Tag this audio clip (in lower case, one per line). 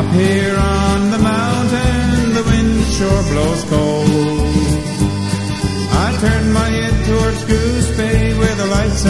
music